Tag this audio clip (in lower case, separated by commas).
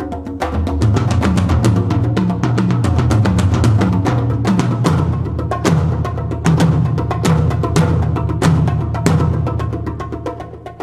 percussion, music, wood block